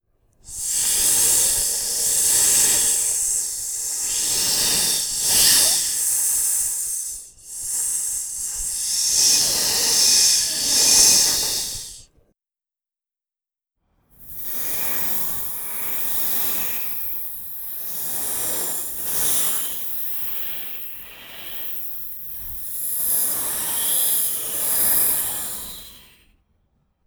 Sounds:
hiss

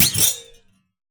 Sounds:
thud

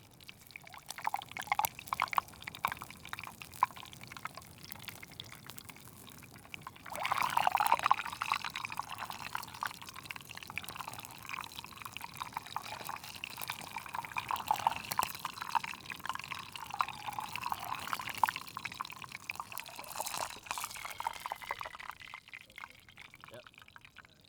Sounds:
liquid
fill (with liquid)

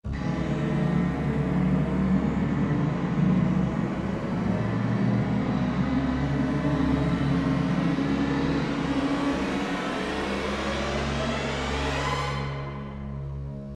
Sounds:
music
musical instrument

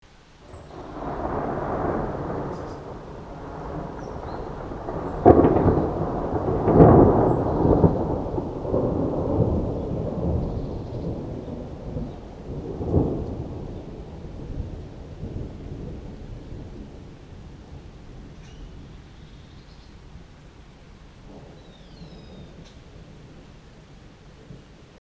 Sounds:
thunder
thunderstorm

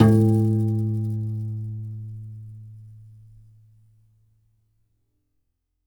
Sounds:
piano
music
musical instrument
keyboard (musical)

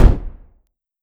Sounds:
gunfire
explosion

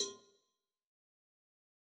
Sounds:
bell
cowbell

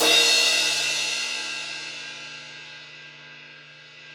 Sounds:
crash cymbal
percussion
cymbal
music
musical instrument

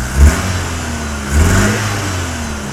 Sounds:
car
motor vehicle (road)
vehicle
engine
revving

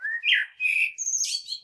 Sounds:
wild animals
bird
animal

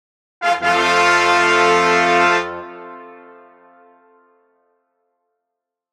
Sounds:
music
musical instrument
brass instrument

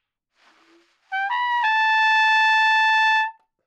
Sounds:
trumpet
brass instrument
music
musical instrument

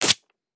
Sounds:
domestic sounds

